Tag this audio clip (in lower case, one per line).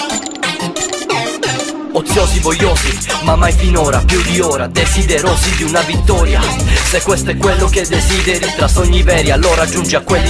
music